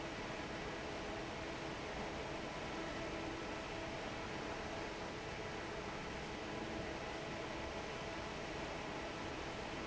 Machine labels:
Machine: fan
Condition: normal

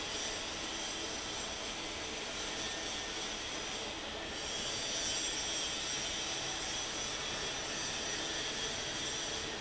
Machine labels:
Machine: fan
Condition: normal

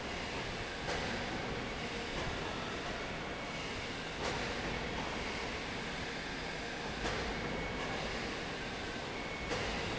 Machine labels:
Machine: fan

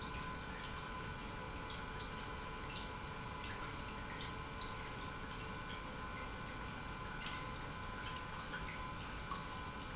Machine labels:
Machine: pump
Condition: normal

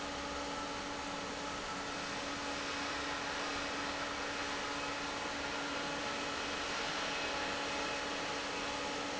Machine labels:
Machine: fan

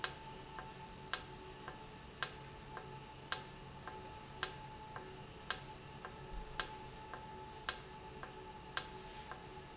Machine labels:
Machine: valve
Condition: normal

